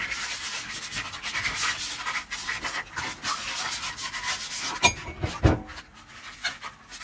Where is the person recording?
in a kitchen